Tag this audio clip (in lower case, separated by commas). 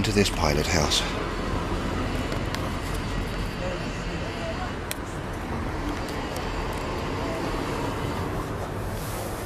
speech